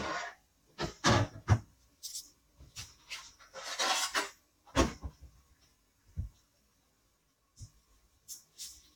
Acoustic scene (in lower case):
kitchen